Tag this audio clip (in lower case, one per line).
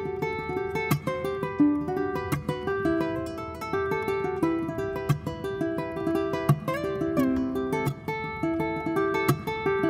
playing ukulele